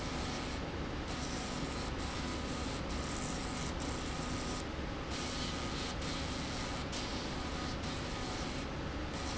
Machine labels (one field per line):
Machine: slide rail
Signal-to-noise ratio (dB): -6 dB